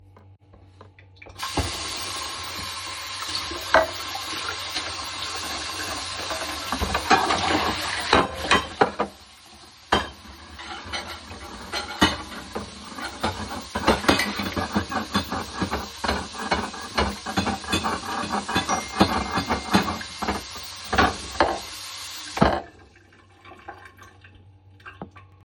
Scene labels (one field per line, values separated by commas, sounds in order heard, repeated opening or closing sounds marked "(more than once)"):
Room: kitchen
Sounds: running water, cutlery and dishes, phone ringing, bell ringing